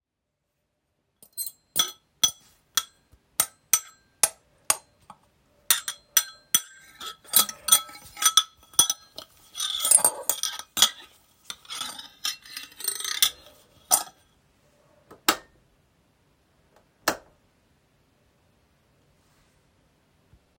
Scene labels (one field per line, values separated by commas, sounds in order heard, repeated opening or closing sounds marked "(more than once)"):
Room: bedroom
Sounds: cutlery and dishes, light switch